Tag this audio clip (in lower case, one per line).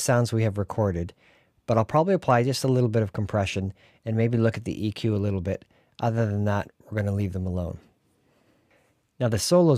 speech